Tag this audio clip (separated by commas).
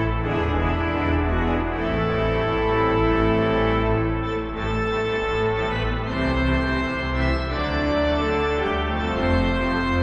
playing electronic organ